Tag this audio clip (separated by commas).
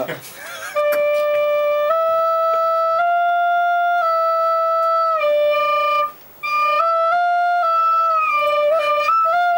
Speech, Flute, Music